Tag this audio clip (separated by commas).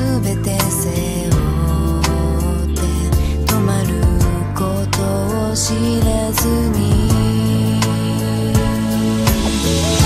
Song, Music, Singing